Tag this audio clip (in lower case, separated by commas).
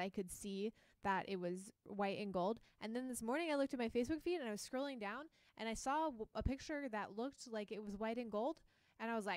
speech